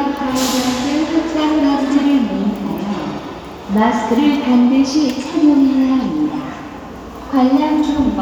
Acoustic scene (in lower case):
crowded indoor space